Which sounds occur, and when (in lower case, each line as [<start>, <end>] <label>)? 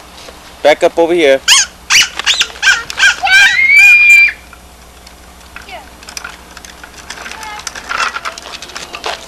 [0.00, 9.25] mechanisms
[0.63, 9.25] conversation
[0.64, 1.35] man speaking
[3.21, 4.32] screaming
[4.06, 4.19] squeak
[5.58, 5.65] generic impact sounds
[6.02, 9.25] roll
[8.16, 9.25] child speech